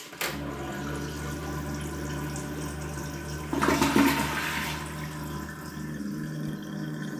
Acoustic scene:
restroom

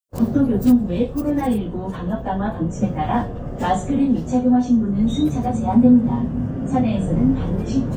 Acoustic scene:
bus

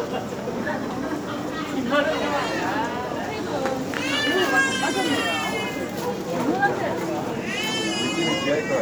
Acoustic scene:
crowded indoor space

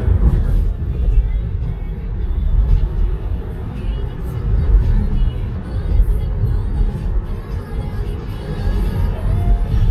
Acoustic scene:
car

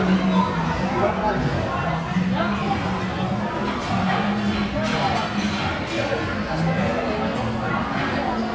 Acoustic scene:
restaurant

